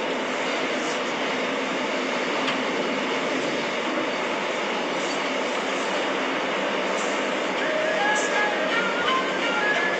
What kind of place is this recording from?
subway train